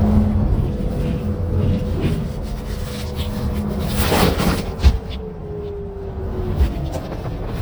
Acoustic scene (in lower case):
bus